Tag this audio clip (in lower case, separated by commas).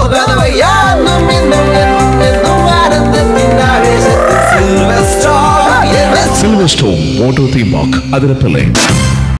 music, speech